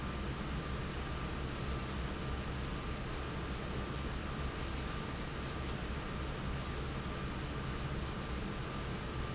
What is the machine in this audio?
fan